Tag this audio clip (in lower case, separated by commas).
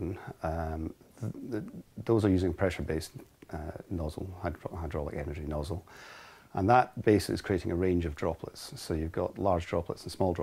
speech